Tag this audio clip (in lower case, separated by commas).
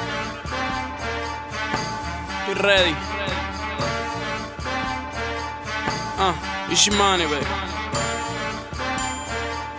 music